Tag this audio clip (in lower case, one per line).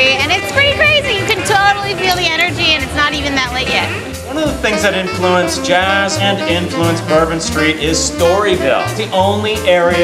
speech
music
bluegrass